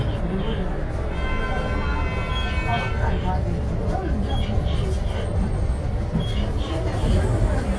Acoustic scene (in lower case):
bus